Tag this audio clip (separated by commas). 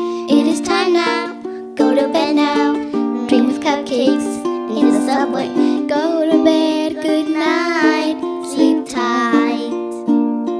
Music, Lullaby